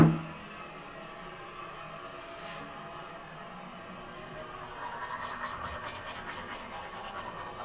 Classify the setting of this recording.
restroom